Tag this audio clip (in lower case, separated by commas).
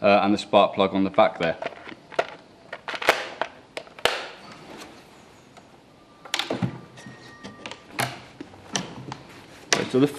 speech